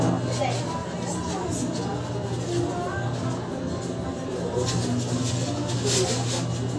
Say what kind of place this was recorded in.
restaurant